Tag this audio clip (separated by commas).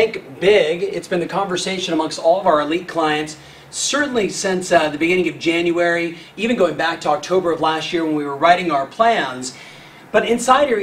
Speech